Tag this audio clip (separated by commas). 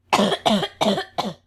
Human voice, Respiratory sounds, Cough